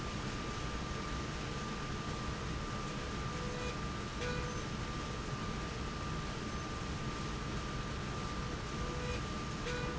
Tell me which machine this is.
slide rail